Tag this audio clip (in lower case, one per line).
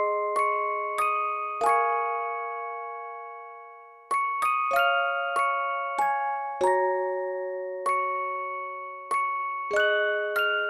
music
soundtrack music